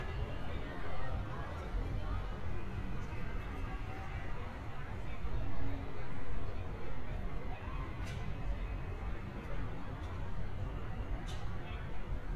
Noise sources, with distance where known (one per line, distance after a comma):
person or small group talking